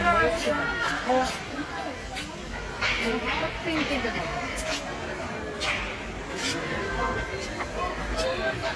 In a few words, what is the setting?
crowded indoor space